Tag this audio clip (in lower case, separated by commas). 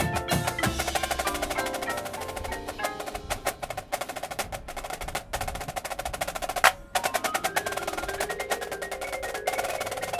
percussion, music